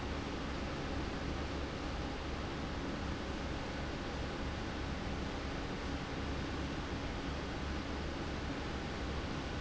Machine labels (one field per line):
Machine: fan